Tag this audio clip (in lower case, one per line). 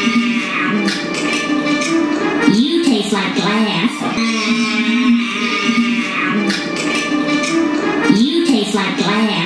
speech
music